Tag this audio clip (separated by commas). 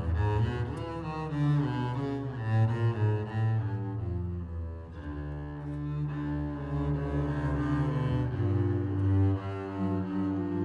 fiddle, Music